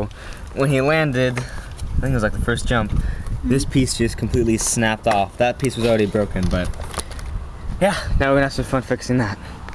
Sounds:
speech

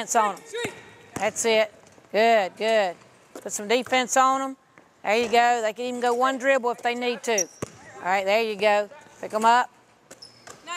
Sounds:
speech

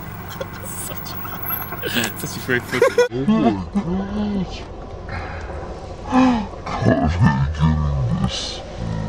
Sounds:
outside, rural or natural
speech

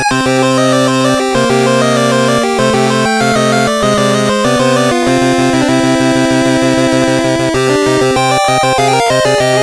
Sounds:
music

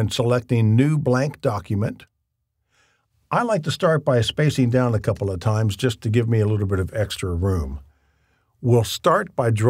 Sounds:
speech

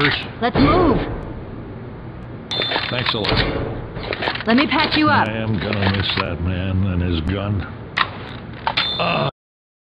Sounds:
speech

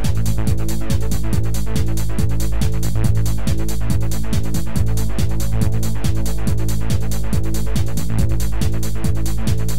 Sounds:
techno
music

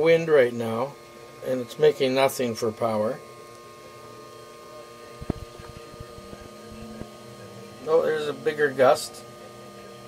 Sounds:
speech

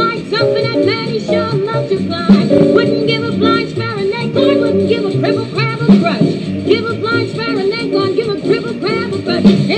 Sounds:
music
inside a large room or hall
synthetic singing

